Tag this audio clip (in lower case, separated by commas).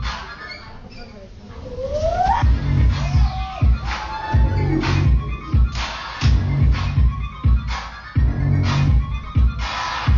speech, music